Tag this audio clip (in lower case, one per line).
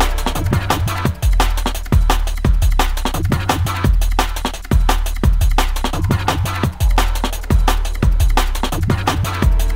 music
drum and bass
electronic music